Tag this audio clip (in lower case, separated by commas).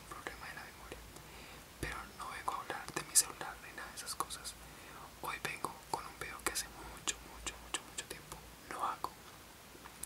speech